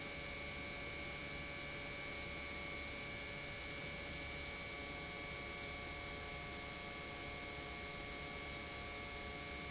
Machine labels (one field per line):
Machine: pump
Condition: normal